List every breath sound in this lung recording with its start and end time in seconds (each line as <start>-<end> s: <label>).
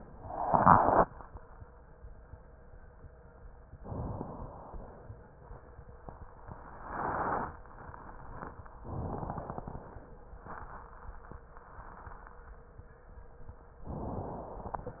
3.79-4.78 s: inhalation
4.78-5.96 s: exhalation
8.80-9.79 s: inhalation
9.82-10.97 s: exhalation